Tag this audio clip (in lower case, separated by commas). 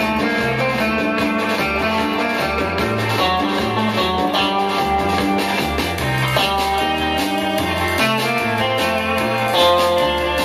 guitar, musical instrument, bass guitar, music, plucked string instrument